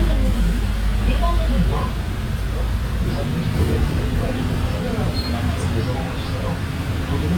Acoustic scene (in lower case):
bus